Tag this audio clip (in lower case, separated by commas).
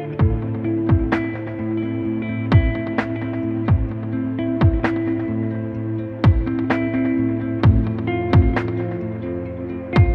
music